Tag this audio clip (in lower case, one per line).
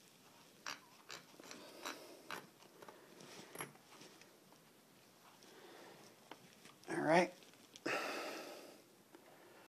speech